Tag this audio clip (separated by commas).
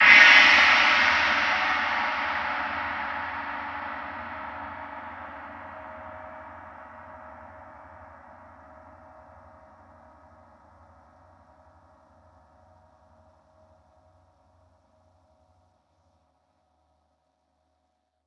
Percussion, Music, Gong, Musical instrument